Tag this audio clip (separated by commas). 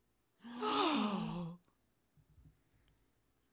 Respiratory sounds, Gasp, Breathing